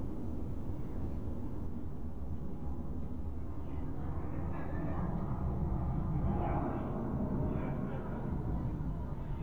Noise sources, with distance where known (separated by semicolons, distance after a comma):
person or small group talking, far